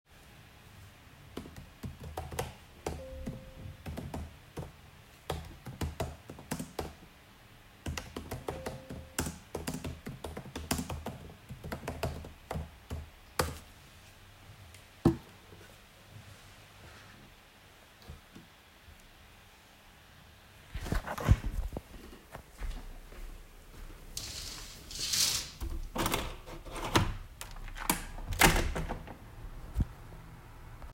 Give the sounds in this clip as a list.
keyboard typing, window